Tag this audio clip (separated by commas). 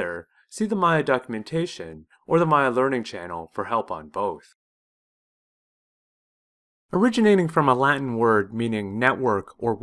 Speech